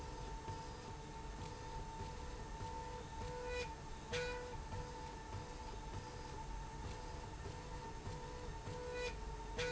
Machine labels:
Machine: slide rail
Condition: normal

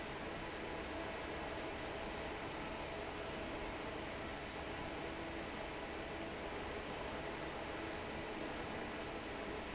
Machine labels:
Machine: fan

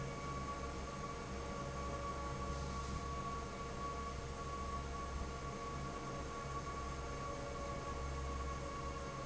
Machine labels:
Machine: fan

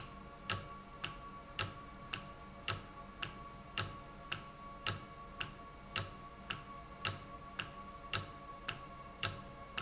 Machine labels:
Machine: valve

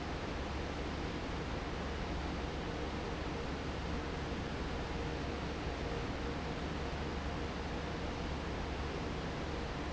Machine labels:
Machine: fan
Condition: normal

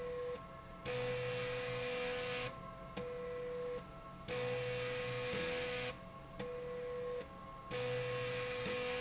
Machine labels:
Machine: slide rail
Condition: abnormal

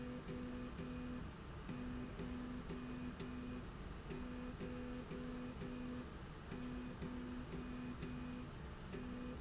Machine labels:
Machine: slide rail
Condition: normal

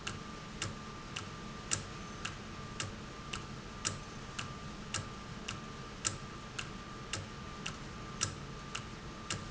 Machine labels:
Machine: valve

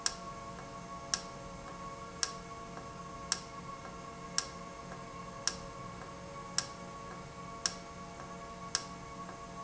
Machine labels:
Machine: valve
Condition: normal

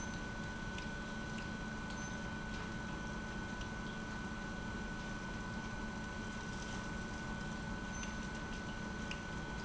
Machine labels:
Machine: pump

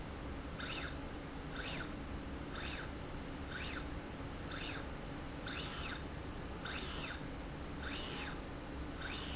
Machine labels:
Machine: slide rail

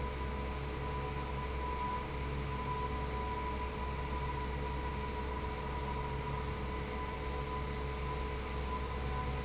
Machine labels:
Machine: fan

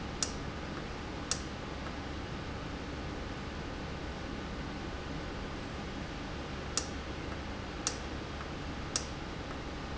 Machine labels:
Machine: valve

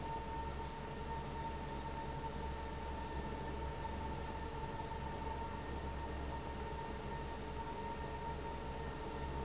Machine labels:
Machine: fan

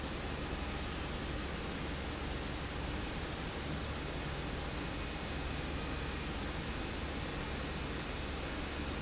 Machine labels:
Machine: pump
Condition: abnormal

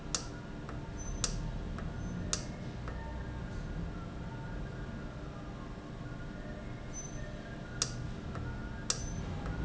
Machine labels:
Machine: valve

